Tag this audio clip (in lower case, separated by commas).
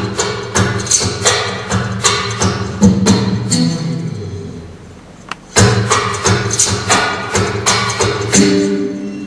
plucked string instrument, music, guitar, acoustic guitar, musical instrument